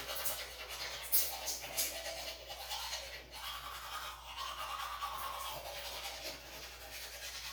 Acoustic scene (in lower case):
restroom